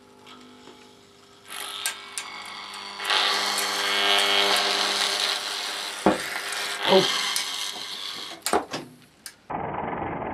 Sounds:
inside a small room

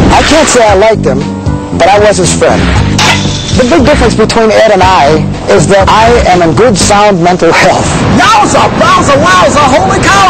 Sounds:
Music, Speech

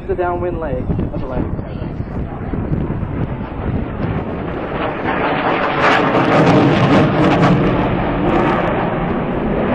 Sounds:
airplane flyby

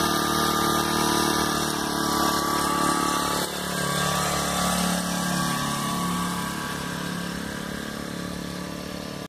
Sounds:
Vehicle

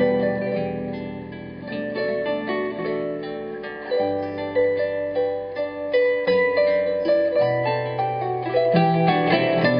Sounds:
Harp, playing harp, Plucked string instrument, Music, Musical instrument

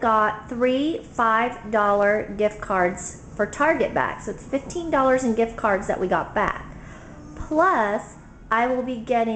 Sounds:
Speech

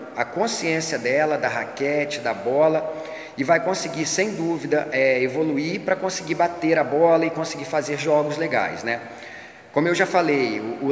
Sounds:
playing squash

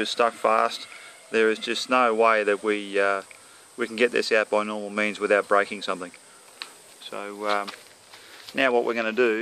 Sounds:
Speech

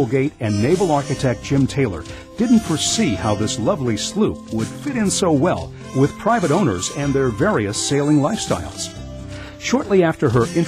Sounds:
Music, Speech

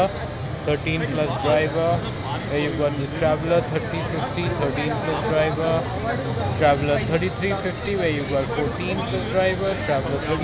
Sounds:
Speech

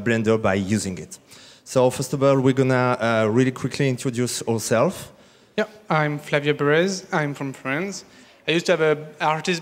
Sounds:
Speech

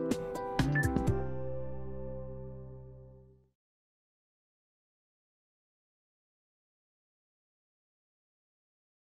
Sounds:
Music

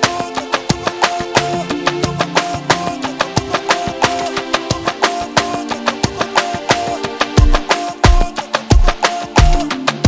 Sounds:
Music

